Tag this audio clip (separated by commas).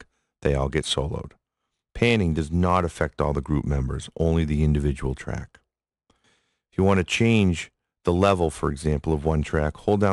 Speech